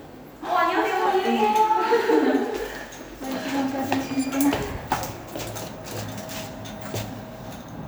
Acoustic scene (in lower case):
elevator